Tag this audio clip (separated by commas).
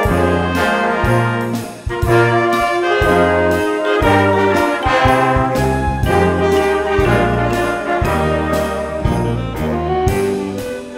Music, Rhythm and blues